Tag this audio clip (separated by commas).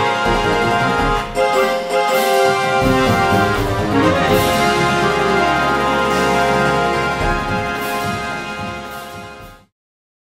Blues, Music, Soundtrack music